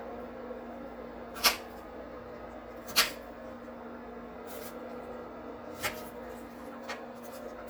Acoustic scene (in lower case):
kitchen